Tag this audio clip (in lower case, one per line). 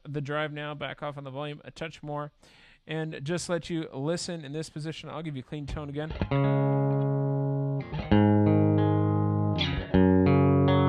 speech
effects unit
inside a small room
distortion
music
guitar